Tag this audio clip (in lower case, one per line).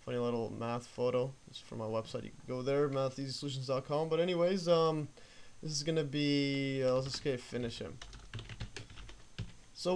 computer keyboard